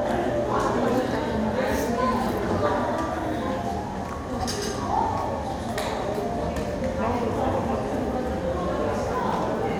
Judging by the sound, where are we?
in a cafe